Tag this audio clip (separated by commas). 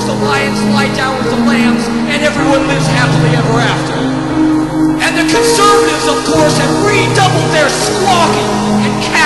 Speech, Music